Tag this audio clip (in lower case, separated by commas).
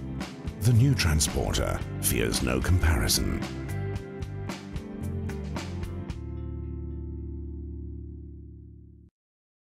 music, speech, television